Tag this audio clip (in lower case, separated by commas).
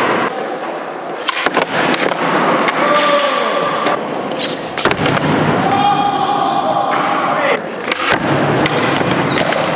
speech